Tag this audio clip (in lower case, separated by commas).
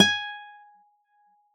music, acoustic guitar, plucked string instrument, guitar, musical instrument